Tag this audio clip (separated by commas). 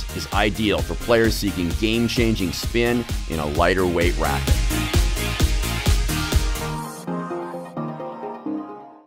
Speech, Music